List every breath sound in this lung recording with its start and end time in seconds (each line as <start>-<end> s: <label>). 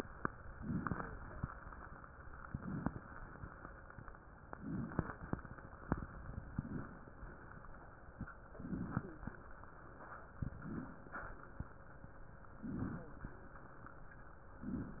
0.56-1.39 s: inhalation
2.51-3.19 s: inhalation
4.50-5.36 s: inhalation
4.90-5.20 s: wheeze
6.50-7.11 s: inhalation
8.57-9.34 s: inhalation
8.93-9.30 s: wheeze
10.38-11.18 s: inhalation
12.55-13.35 s: inhalation
12.91-13.13 s: wheeze
14.55-15.00 s: inhalation